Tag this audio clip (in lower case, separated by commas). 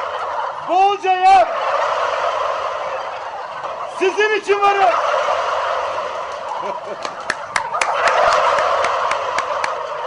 gobble, turkey, fowl